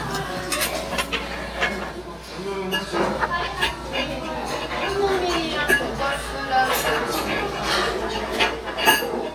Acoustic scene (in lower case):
restaurant